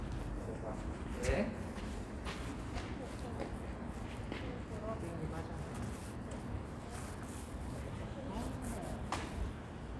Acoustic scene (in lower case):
residential area